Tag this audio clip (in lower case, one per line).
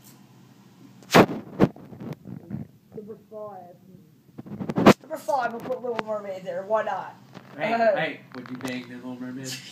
inside a small room
speech